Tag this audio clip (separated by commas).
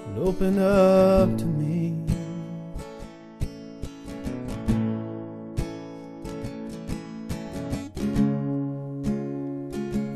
Music